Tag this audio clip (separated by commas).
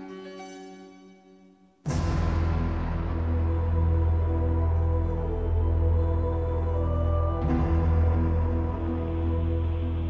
Music